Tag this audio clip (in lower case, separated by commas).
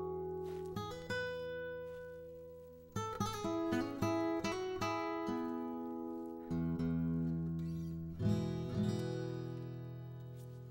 music